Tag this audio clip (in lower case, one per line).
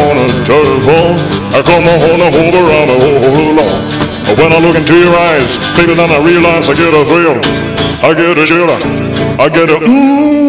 music